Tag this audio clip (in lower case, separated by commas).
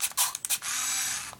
camera, mechanisms